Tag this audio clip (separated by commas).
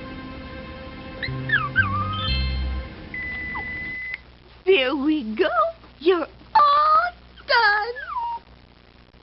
Animal, Speech, Dog, Music